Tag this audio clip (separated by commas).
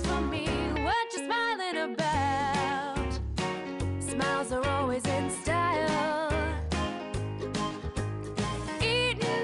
Music